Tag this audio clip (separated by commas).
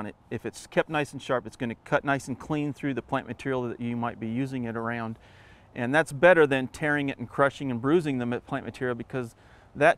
Speech